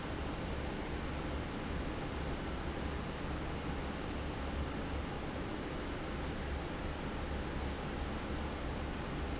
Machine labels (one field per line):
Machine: fan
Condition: abnormal